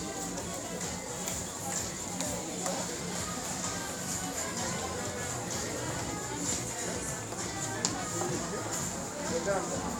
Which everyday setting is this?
crowded indoor space